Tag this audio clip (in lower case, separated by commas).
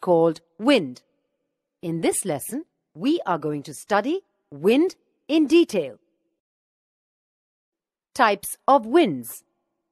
speech